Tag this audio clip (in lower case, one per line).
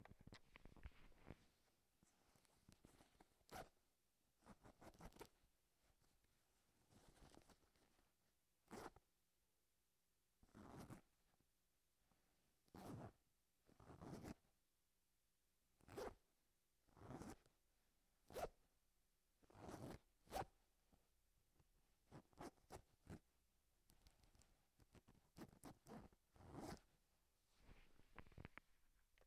home sounds
zipper (clothing)